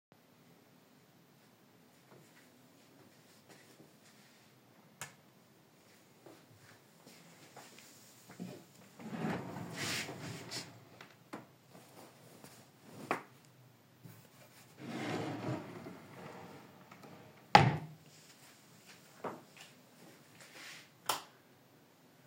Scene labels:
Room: bedroom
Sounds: light switch, wardrobe or drawer (more than once)

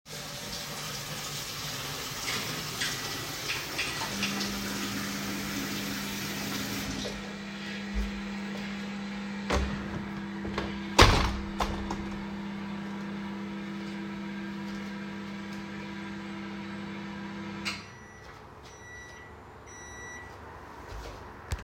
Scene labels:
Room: kitchen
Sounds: running water, microwave, window

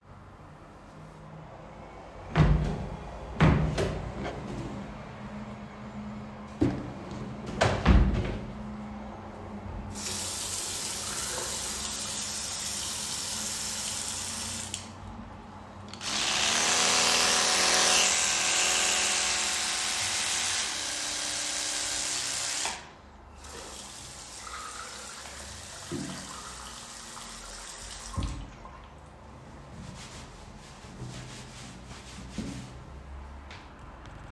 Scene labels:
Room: lavatory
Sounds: wardrobe or drawer (more than once), running water

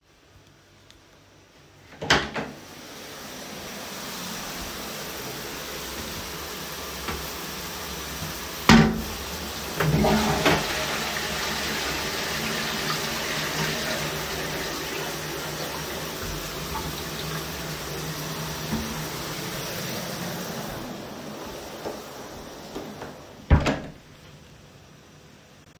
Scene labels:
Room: bathroom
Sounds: door (more than once), running water, toilet flushing

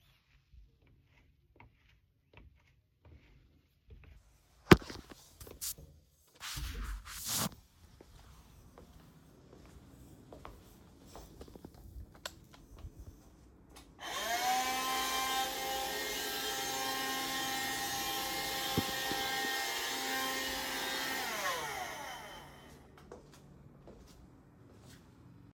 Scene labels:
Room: living room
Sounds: footsteps, vacuum cleaner

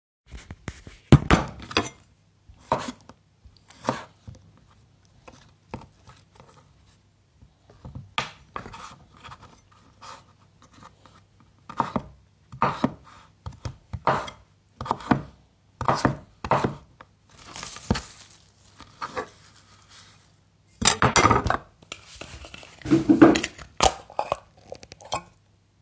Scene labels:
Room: kitchen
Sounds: cutlery and dishes

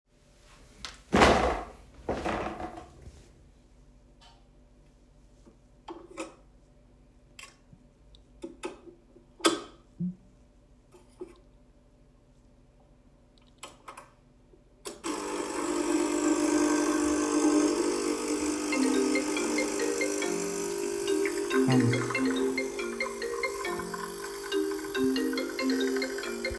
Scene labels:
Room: kitchen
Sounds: coffee machine, phone ringing, running water

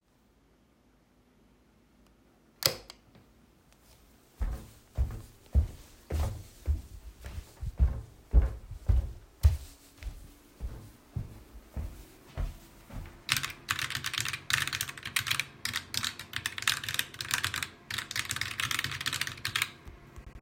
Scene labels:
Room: office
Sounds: light switch, footsteps, keyboard typing

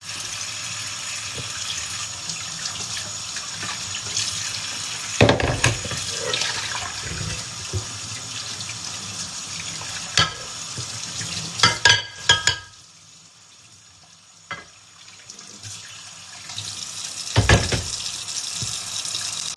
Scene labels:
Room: kitchen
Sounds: running water, cutlery and dishes

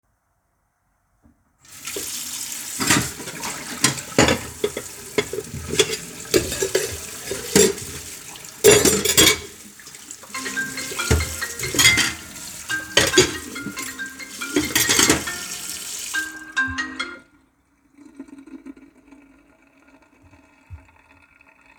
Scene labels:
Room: kitchen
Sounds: running water, cutlery and dishes, phone ringing

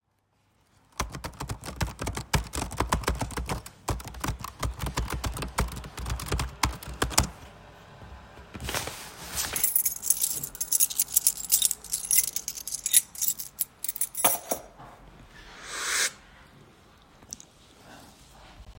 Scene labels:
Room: living room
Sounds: keyboard typing, keys

